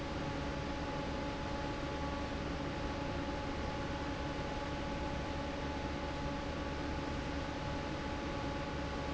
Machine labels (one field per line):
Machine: fan